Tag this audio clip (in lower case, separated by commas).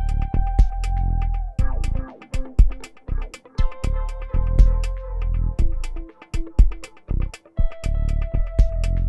music, keyboard (musical), guitar, musical instrument, synthesizer